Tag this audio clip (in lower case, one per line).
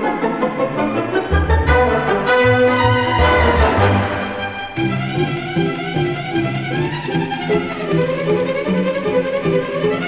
music